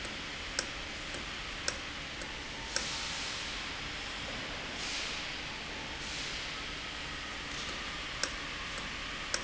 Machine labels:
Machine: valve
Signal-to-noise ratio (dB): -6 dB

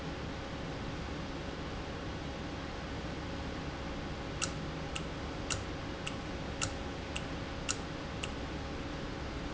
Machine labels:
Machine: valve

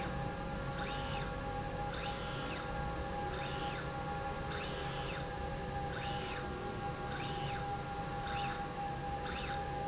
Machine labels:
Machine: slide rail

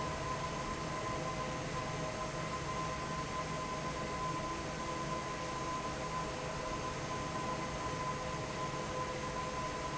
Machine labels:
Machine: fan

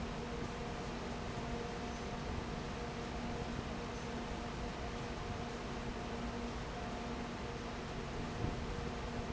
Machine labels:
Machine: fan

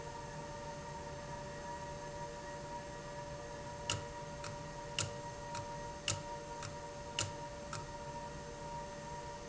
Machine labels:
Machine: valve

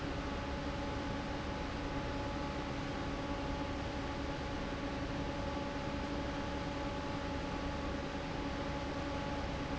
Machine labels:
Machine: fan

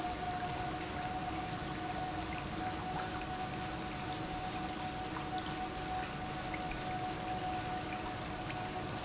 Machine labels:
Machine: pump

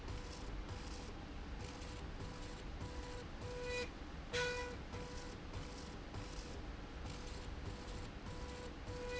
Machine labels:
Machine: slide rail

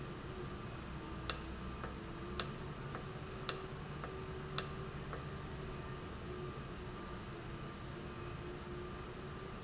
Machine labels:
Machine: valve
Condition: normal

